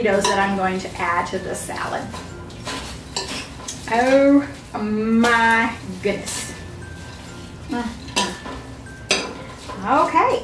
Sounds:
music
speech
dishes, pots and pans
inside a small room

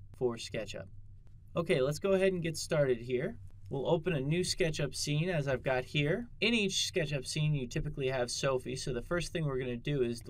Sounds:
speech

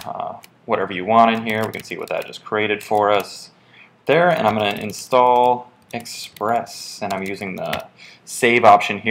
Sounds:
speech

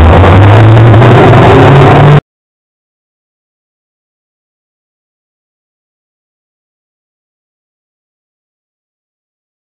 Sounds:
revving
vehicle
car

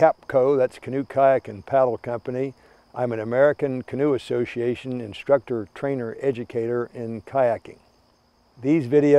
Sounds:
speech

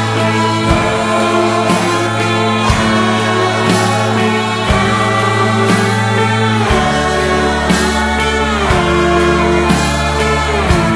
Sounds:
music

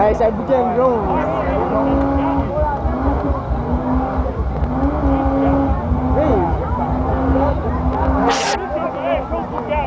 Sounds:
vehicle
car
engine
vroom
speech

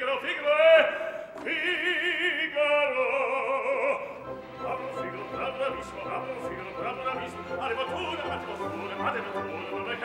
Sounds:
music
opera

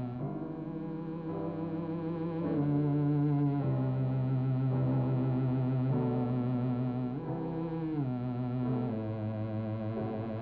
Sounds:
music

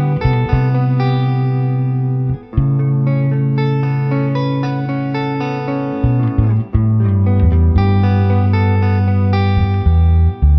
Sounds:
music
heavy metal

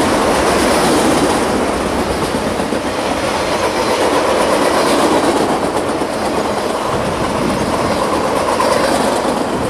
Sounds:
train

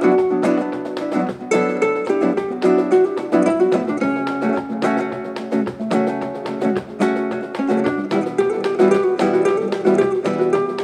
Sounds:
music

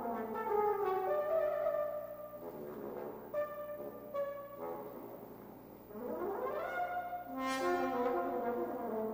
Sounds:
playing french horn

